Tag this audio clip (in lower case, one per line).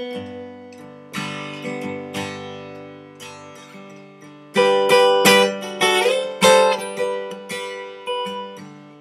musical instrument
guitar
acoustic guitar
plucked string instrument
music
strum